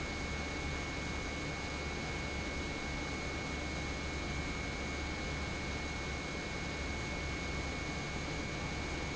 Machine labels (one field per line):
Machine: pump